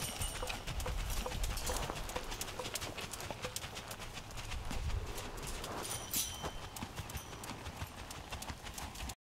A horse is trotting and metal clings